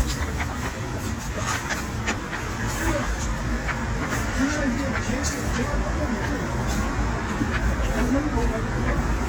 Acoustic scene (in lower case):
street